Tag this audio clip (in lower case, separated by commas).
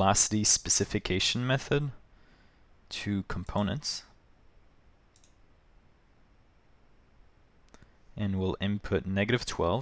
speech